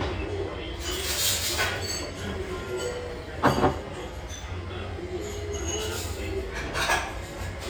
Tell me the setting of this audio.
restaurant